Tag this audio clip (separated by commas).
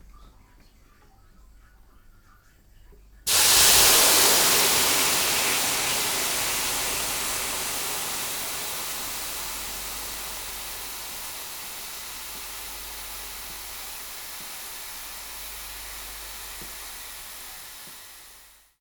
Hiss